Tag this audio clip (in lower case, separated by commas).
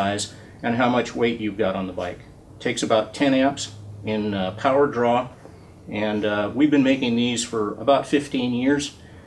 speech